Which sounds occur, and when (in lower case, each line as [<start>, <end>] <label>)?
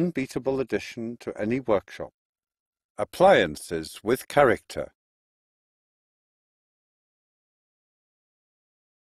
[0.00, 2.06] man speaking
[2.94, 4.89] man speaking